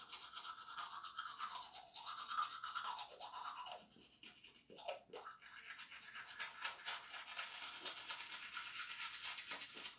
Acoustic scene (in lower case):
restroom